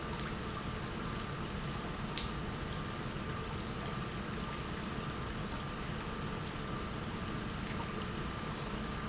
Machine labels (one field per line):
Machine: pump